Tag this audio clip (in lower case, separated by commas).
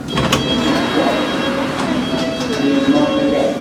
vehicle, home sounds, metro, door, rail transport, sliding door